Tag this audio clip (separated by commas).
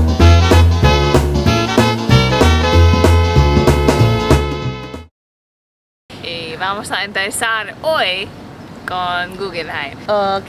Swing music